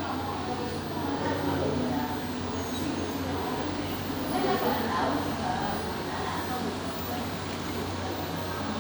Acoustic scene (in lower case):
cafe